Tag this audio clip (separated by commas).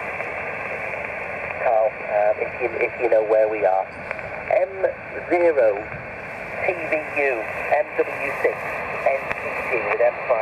Speech